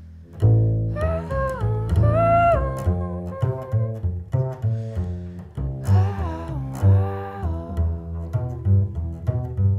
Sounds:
Musical instrument, Music, Double bass, Plucked string instrument

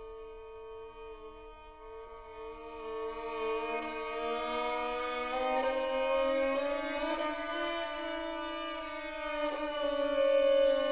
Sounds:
Music, Musical instrument, fiddle

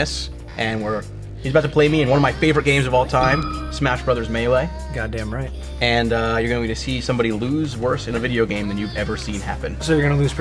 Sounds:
Music, Speech

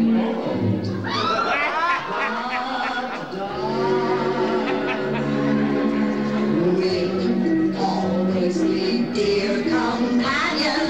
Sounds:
Music, inside a large room or hall, Singing

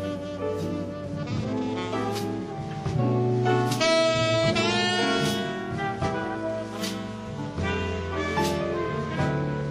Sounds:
Music

